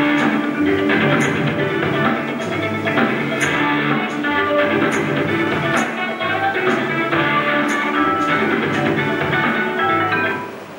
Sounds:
music

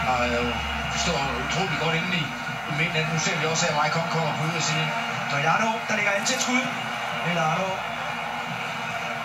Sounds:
speech

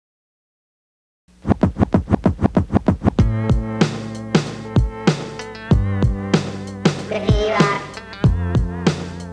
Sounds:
hip hop music, music

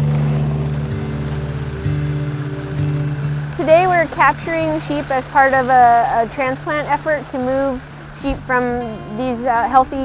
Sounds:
speech, music

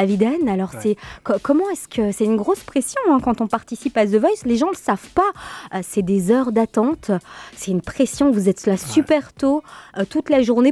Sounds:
speech, music

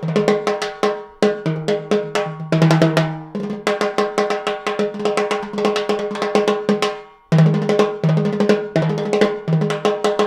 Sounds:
playing timbales

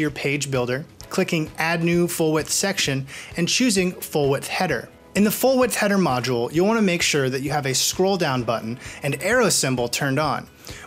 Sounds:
music, speech

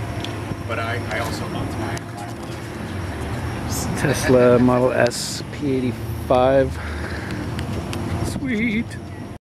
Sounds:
speech, vehicle

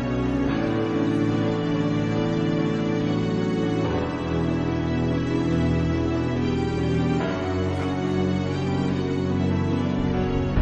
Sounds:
music

